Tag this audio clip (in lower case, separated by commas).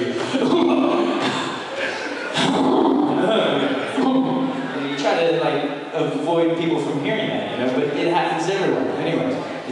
speech